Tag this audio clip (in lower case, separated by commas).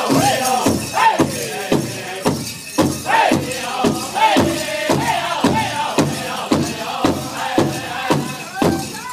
speech, music